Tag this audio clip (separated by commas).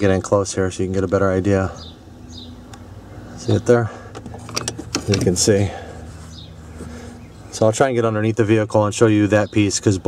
Speech, outside, rural or natural